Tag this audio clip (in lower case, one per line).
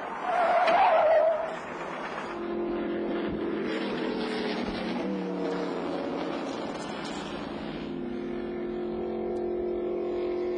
car
vehicle